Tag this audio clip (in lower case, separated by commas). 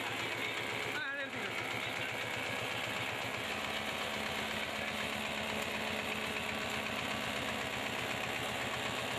power tool